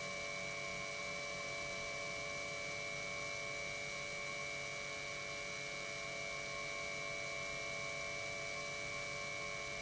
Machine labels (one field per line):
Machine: pump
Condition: normal